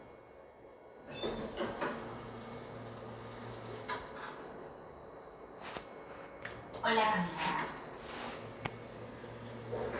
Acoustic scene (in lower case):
elevator